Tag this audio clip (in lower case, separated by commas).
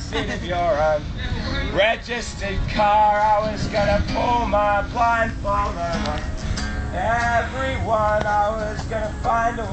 speech, music